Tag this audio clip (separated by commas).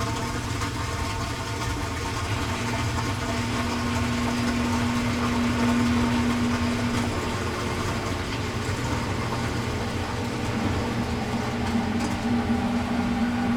Engine